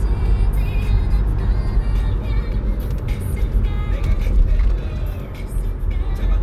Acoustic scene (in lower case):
car